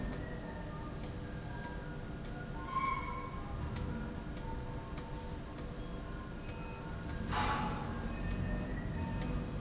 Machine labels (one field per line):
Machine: slide rail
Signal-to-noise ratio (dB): -6 dB